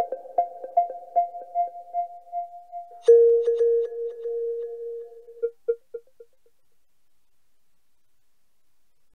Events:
[0.00, 6.81] music
[0.00, 9.15] background noise

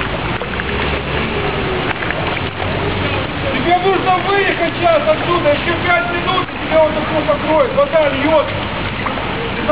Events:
[0.00, 9.71] motor vehicle (road)
[0.00, 9.71] water
[3.54, 8.50] male speech

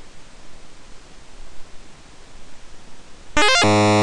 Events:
[0.01, 4.02] video game sound

